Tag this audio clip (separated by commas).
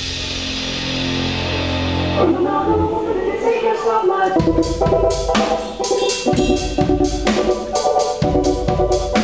Percussion, Music